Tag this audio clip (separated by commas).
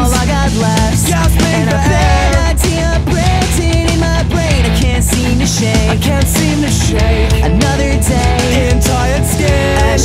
Plucked string instrument, Guitar, Musical instrument, Bass guitar, Music, Electric guitar